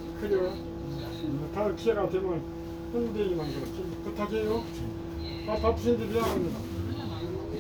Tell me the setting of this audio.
bus